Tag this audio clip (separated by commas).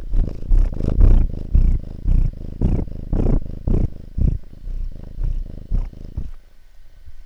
pets, Animal, Cat, Purr